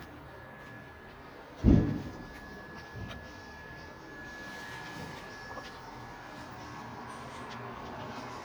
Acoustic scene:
elevator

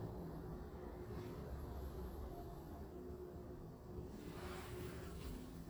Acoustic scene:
elevator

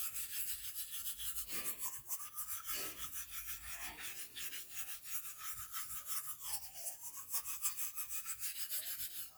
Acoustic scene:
restroom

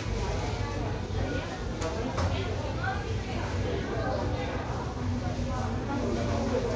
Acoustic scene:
crowded indoor space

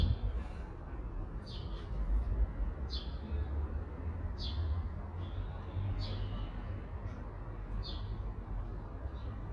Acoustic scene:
residential area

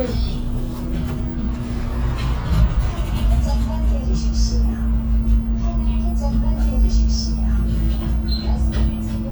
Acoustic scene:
bus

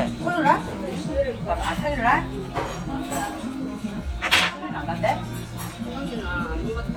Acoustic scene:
crowded indoor space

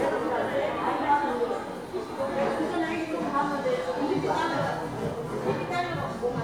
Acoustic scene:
crowded indoor space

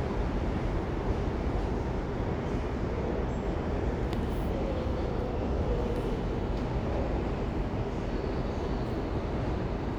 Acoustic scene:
subway station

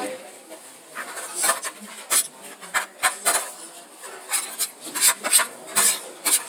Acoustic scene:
kitchen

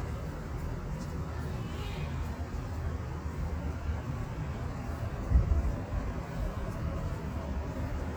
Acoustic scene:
residential area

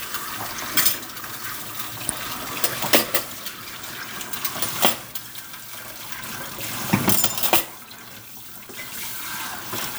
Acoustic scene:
kitchen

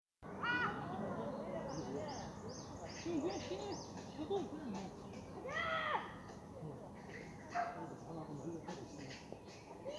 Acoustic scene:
park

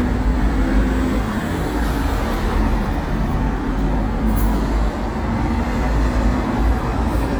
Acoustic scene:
street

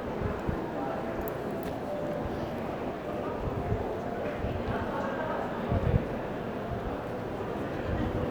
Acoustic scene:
crowded indoor space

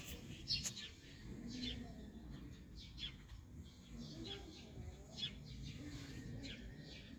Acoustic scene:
park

